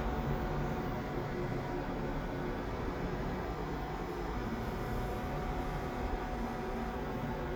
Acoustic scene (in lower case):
elevator